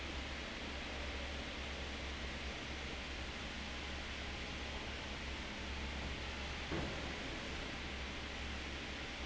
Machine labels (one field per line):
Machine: fan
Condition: abnormal